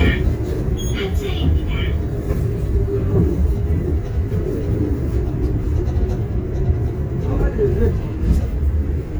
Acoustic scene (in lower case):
bus